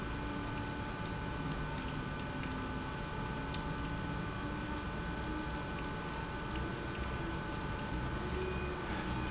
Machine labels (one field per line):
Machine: pump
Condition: abnormal